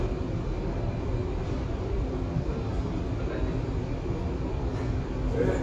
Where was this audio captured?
in a subway station